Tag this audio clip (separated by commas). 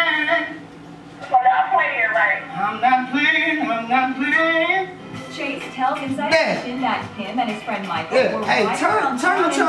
Speech, Music